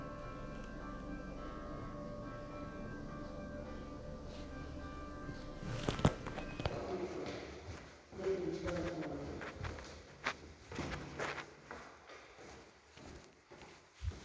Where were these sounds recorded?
in an elevator